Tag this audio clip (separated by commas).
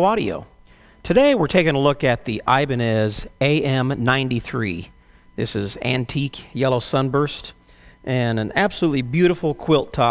Speech